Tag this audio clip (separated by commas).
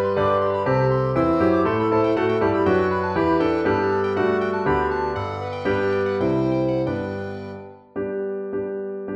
playing harpsichord